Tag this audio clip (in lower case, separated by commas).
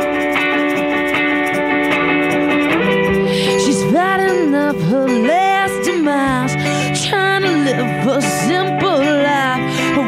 music